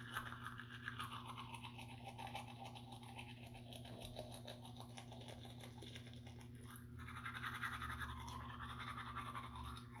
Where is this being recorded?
in a restroom